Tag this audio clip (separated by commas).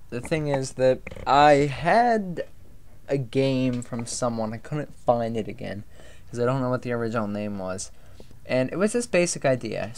Speech